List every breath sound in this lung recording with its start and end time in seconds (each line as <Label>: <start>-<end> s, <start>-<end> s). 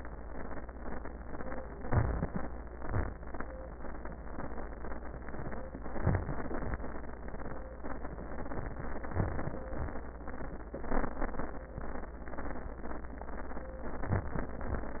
Inhalation: 1.85-2.54 s, 5.97-6.44 s, 9.13-9.59 s, 14.08-14.48 s
Exhalation: 2.70-3.17 s, 9.71-10.11 s, 14.60-14.91 s